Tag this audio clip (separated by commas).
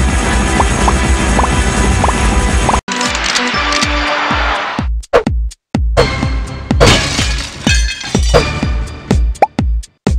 Music